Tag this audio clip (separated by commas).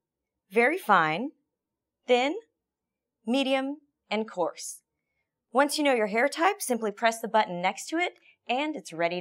Speech